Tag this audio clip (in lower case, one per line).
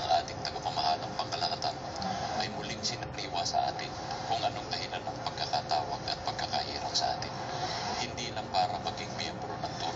speech